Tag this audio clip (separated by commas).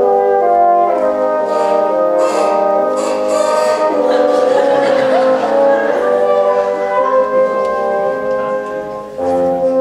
playing bassoon